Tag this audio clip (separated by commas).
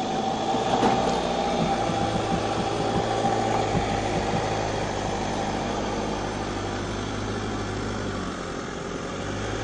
Car, Vehicle, outside, rural or natural